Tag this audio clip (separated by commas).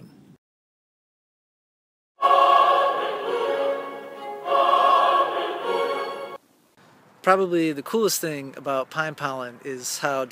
outside, rural or natural, Music, Speech